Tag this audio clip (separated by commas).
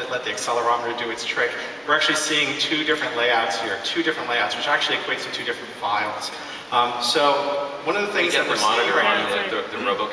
Speech